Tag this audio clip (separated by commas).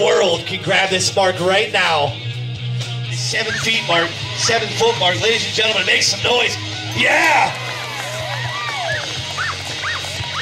Domestic animals, Dog, Bow-wow, Animal, Speech, Whimper (dog), Music